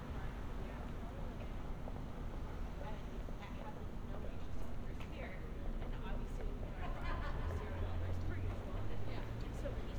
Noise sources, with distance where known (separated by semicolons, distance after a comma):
person or small group talking, near